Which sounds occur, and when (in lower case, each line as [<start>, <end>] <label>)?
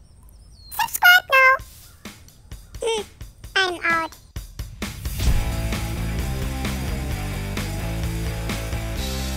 [0.00, 0.75] bird song
[0.00, 4.77] wind
[0.68, 1.59] kid speaking
[1.52, 9.35] music
[1.74, 2.76] bird song
[2.77, 3.05] kid speaking
[3.47, 4.06] kid speaking
[3.76, 4.26] bird song